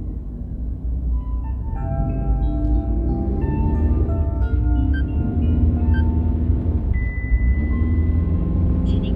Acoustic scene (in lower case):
car